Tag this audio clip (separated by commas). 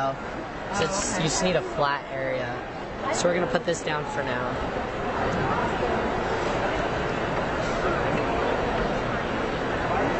Speech